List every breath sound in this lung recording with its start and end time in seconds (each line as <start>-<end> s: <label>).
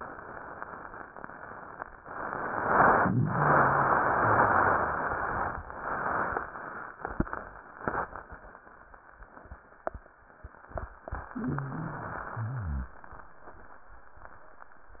11.27-12.30 s: wheeze
12.32-12.98 s: wheeze